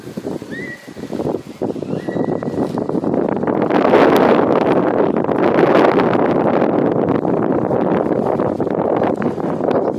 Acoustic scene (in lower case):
residential area